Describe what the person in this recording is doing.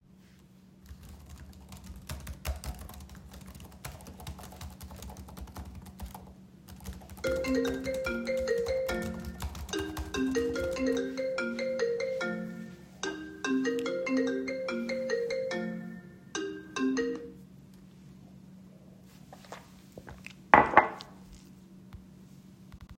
I was typing when the phone rang. After that, I drank my coffee.